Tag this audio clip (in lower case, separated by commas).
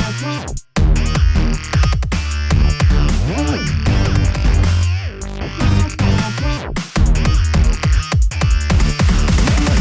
dubstep, electronic music, music